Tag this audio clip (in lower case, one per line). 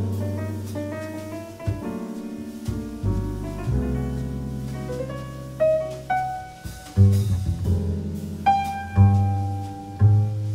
musical instrument
music